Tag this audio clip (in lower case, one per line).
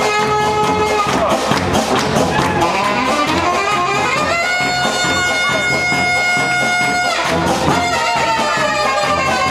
music